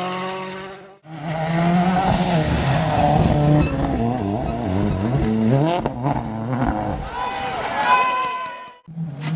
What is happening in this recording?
A vehicle is driving by while people are shouting